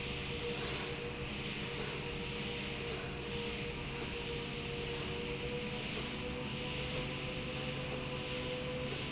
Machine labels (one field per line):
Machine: slide rail